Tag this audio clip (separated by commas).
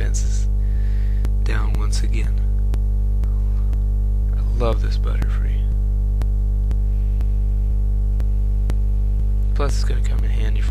Speech